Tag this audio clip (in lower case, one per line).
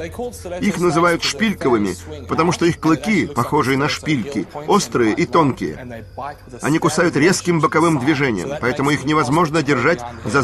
speech
music